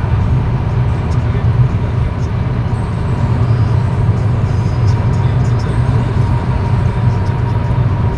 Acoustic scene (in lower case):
car